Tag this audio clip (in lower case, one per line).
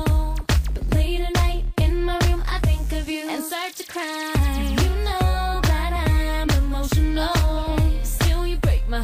music